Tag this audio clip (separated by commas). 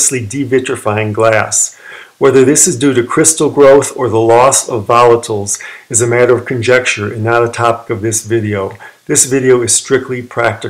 Speech